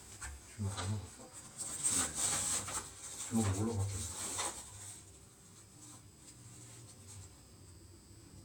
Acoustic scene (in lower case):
elevator